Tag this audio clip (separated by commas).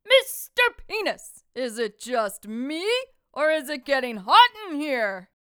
Yell, Shout, Female speech, Speech, Human voice